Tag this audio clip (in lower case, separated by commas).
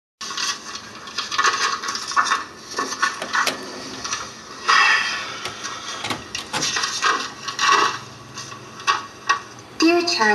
speech, television